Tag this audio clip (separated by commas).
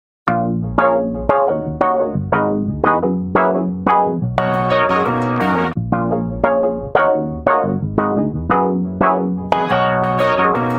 Electronic music, Music